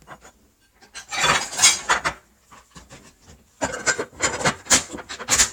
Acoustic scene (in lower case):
kitchen